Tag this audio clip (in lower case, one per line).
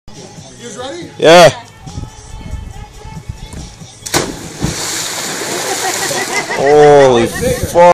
music
speech
water
slosh